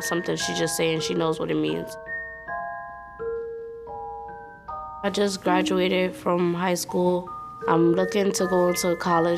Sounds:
Glockenspiel, Mallet percussion, xylophone

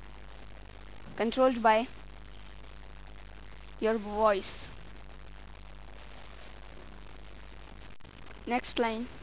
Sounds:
Speech synthesizer, woman speaking, Speech, Narration

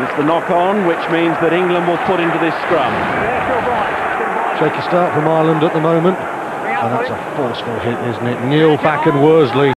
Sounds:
Speech

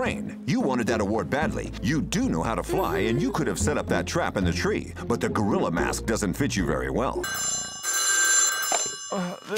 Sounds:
Speech, Music

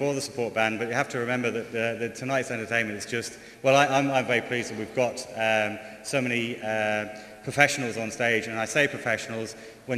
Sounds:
Speech

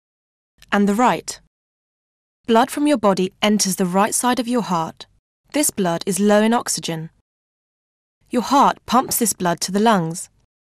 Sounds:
Speech

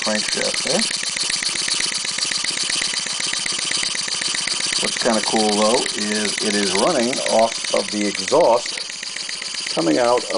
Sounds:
Engine, Speech

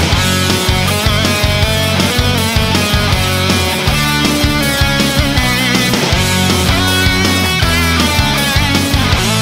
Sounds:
Music, Soundtrack music

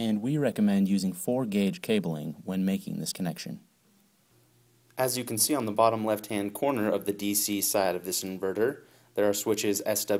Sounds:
Speech

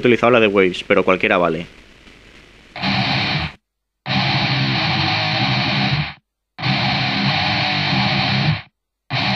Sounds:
Speech, Music

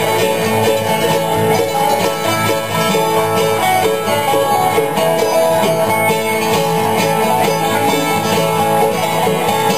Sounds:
Country, Bluegrass, Music

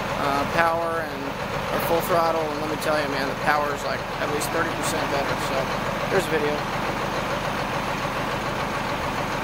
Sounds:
Speech

